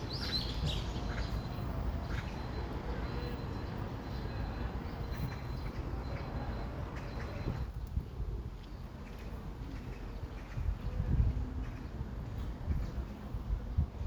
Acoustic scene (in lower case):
park